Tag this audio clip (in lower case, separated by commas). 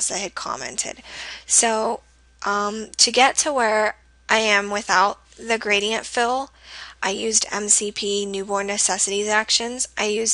speech